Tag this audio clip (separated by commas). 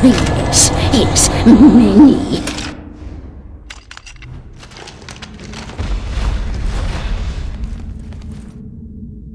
Speech